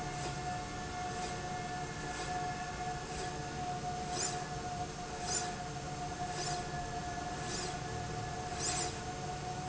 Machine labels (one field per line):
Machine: slide rail